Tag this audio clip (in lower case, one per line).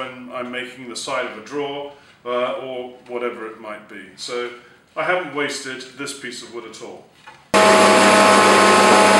planing timber